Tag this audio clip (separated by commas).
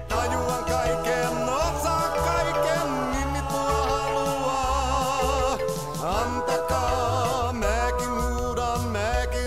Music